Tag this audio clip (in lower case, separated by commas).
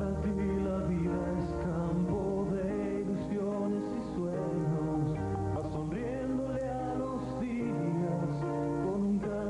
music